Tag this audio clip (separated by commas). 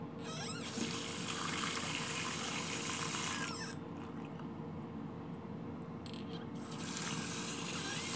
Domestic sounds, Water tap